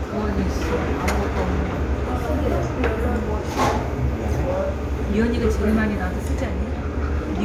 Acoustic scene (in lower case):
restaurant